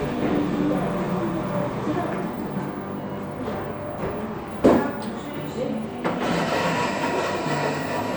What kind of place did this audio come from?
cafe